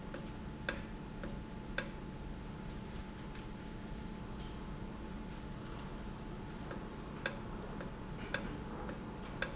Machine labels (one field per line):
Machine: valve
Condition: normal